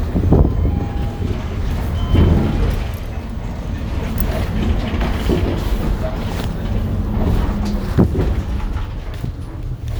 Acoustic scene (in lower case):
bus